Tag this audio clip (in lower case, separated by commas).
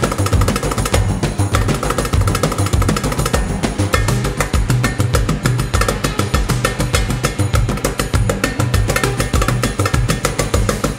folk music, music